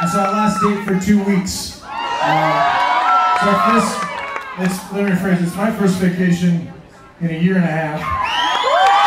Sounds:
speech

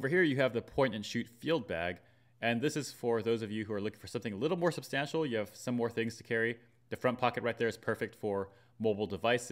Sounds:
speech

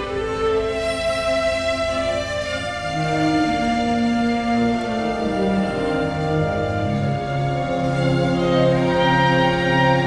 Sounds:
acoustic guitar, musical instrument, music, plucked string instrument, guitar

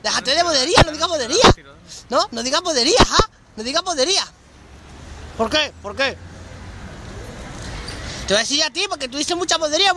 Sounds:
speech

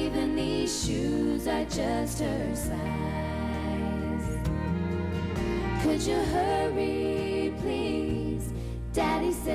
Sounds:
music, female singing

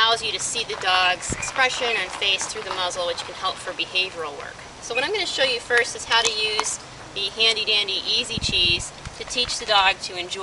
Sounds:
speech

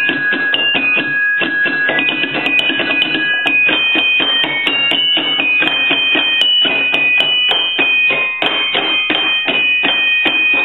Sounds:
playing glockenspiel

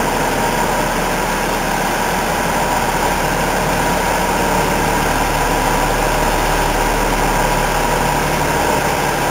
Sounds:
vehicle, truck

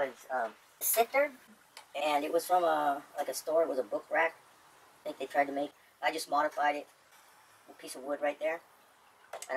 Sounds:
speech

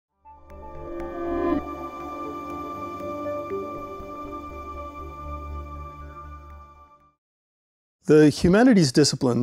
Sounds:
synthesizer

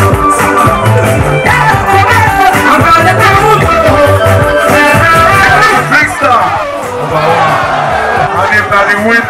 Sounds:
music, dance music, speech

